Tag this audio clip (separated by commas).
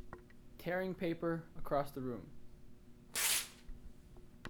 Tearing